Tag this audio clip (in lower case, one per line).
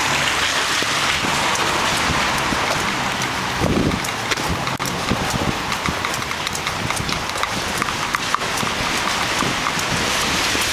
raindrop
raining
rain on surface